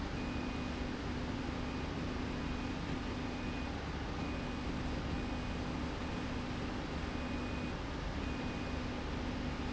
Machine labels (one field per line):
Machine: slide rail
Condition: normal